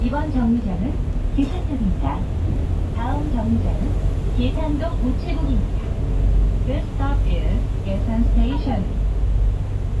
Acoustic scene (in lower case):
bus